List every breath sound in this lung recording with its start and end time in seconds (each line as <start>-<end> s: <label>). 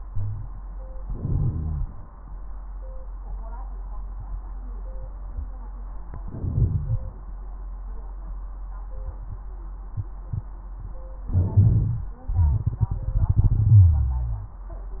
0.07-0.50 s: wheeze
1.09-1.88 s: inhalation
1.09-1.88 s: crackles
6.08-7.12 s: inhalation
6.08-7.12 s: crackles
11.25-12.28 s: inhalation
13.76-15.00 s: wheeze